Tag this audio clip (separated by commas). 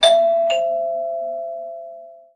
Door, home sounds, Alarm, Doorbell